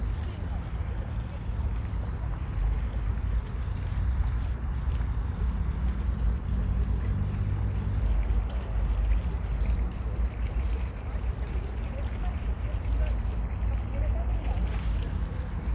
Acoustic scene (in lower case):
park